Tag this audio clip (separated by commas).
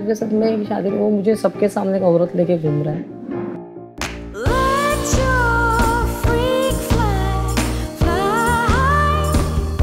Speech, Music